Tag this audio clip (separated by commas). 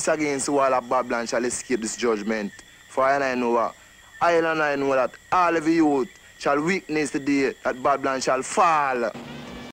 man speaking, Narration, Music, Speech